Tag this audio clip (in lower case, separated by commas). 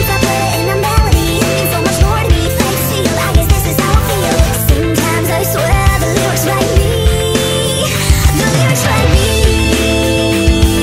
rock and roll, music